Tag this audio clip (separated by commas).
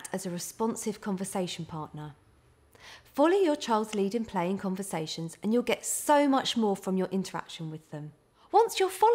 child speech